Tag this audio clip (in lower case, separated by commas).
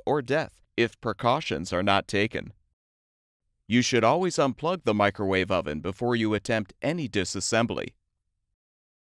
speech